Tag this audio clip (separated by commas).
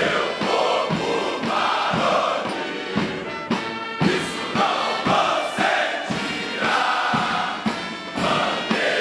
people marching